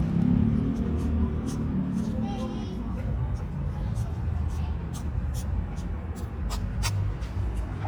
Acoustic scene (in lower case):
residential area